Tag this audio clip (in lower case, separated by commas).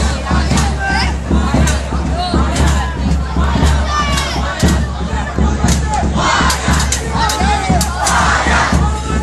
speech, music